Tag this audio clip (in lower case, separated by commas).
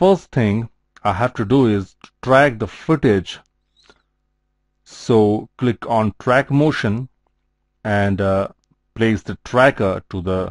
speech